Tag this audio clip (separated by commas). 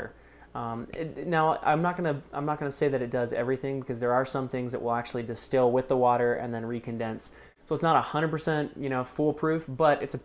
Speech